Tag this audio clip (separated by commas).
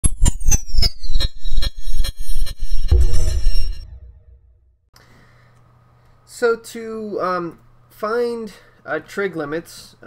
Speech, Music